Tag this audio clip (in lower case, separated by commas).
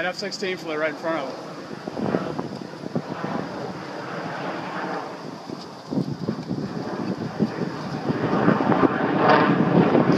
heavy engine (low frequency), vehicle, speech, engine, aircraft